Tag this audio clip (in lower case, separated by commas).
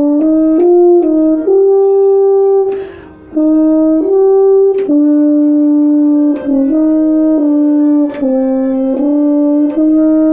playing french horn